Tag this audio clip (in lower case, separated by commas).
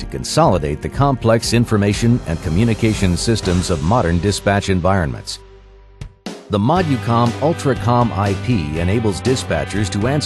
speech, music